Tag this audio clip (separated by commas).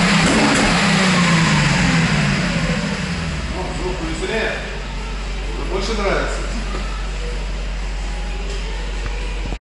Music, Speech